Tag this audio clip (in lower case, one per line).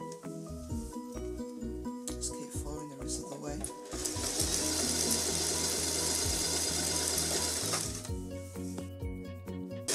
speech
music